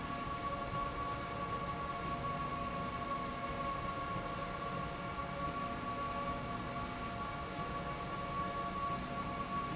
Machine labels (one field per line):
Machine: slide rail